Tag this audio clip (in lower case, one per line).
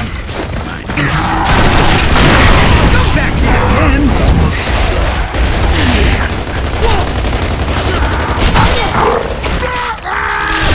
speech